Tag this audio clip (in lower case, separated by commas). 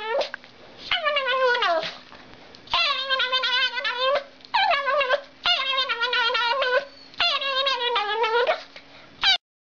pets, animal, dog